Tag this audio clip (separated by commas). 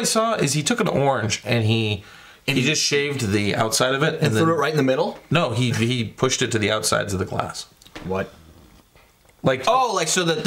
inside a small room, Speech